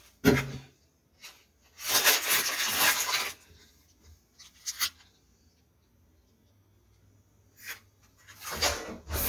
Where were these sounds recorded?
in a kitchen